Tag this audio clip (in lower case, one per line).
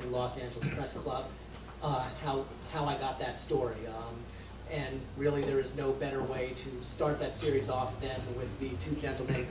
speech